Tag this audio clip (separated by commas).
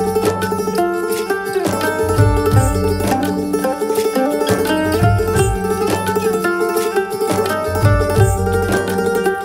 playing mandolin